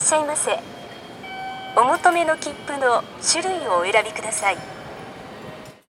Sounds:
underground, Vehicle, Rail transport, Human voice

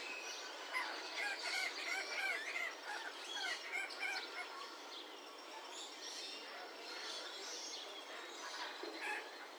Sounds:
Wild animals, Bird, Animal

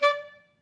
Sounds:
Music, Musical instrument, Wind instrument

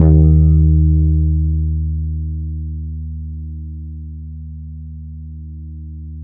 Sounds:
Plucked string instrument, Guitar, Bass guitar, Music, Musical instrument

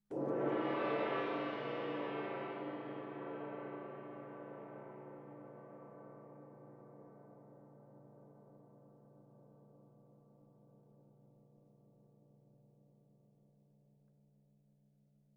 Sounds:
Music, Percussion, Gong, Musical instrument

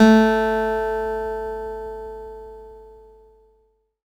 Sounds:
Music, Musical instrument, Plucked string instrument, Acoustic guitar, Guitar

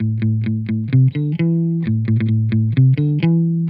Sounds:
Musical instrument, Music, Electric guitar, Guitar, Plucked string instrument

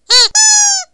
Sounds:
Squeak

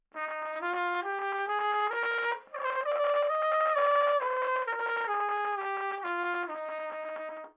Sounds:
Musical instrument, Brass instrument, Music, Trumpet

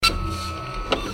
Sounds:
Printer, Mechanisms

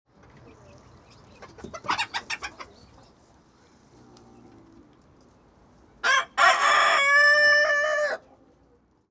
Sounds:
livestock, rooster, Animal, Fowl

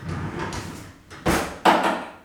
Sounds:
home sounds, Drawer open or close

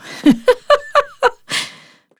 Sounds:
Laughter, Giggle, Human voice

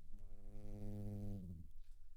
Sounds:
Insect, Buzz, Animal, Wild animals

